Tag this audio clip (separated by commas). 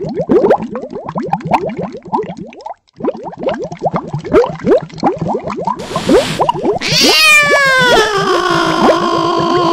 Sound effect